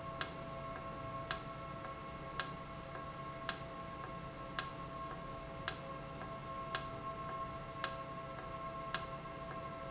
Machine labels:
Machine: valve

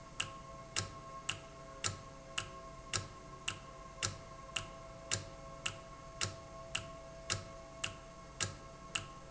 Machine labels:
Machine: valve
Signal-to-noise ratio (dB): 6 dB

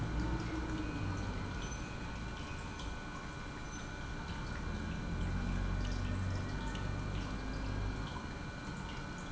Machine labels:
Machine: pump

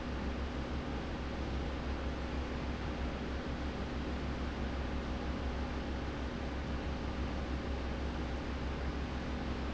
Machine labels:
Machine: fan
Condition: abnormal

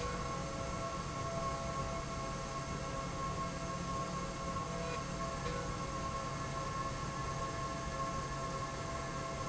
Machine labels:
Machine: slide rail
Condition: normal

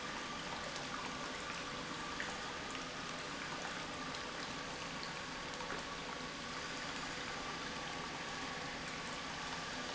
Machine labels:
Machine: pump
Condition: normal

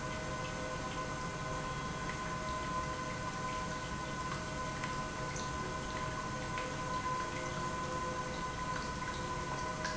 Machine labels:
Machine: pump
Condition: normal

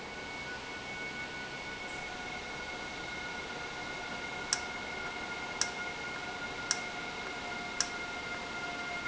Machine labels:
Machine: valve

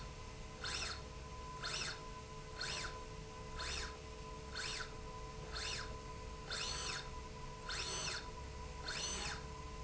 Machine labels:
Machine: slide rail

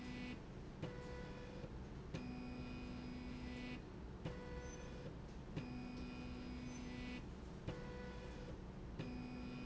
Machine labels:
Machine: slide rail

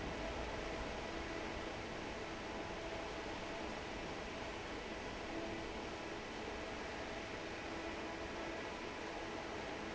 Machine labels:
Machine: fan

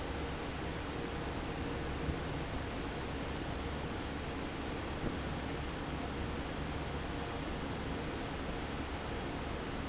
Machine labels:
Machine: fan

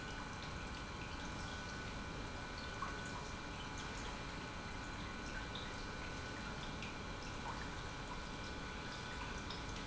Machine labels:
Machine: pump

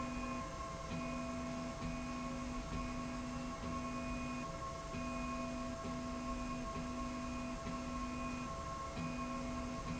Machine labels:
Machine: slide rail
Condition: normal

